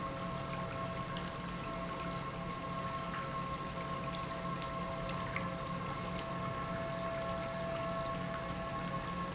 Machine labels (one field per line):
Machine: pump